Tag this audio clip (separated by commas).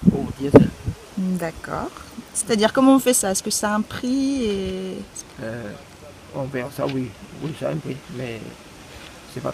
Speech